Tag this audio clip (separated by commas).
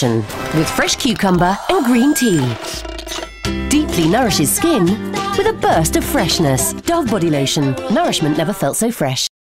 Speech, Music